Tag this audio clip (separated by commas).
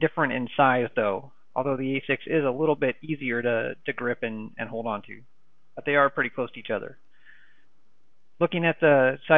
Speech